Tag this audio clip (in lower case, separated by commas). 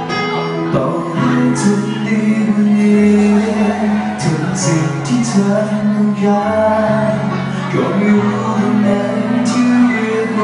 music